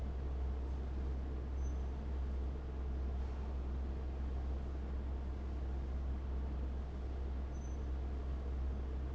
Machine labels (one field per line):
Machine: fan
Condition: abnormal